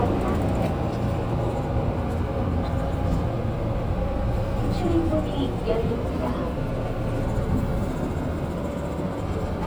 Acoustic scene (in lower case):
subway train